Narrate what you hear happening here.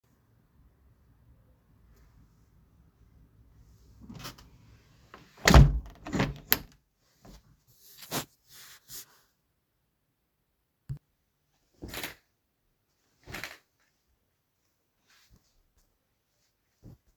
The opened window and the curtains are closed